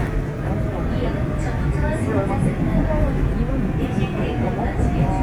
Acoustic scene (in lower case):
subway train